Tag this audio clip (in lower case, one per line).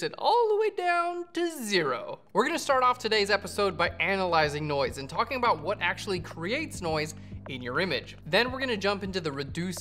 speech